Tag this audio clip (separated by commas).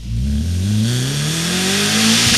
Car, Vehicle, Motor vehicle (road), Accelerating, Engine